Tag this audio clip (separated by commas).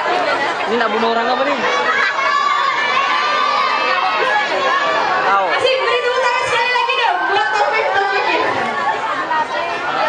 Speech